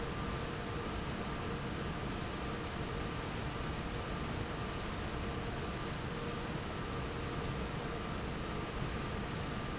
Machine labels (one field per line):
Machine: fan